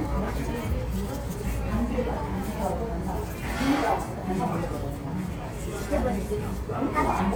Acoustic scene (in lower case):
restaurant